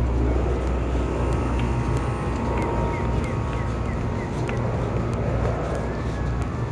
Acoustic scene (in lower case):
residential area